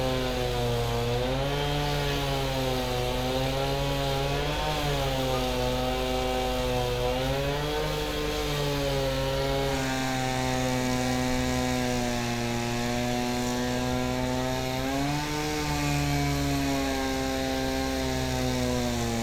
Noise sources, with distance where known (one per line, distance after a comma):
chainsaw, near